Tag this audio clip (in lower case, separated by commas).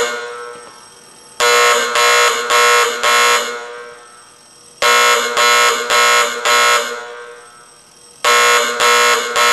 buzzer